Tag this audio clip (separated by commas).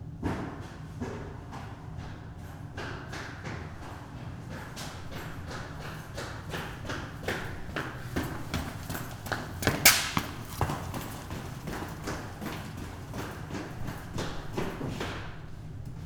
Run